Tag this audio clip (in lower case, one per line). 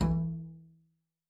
music
bowed string instrument
musical instrument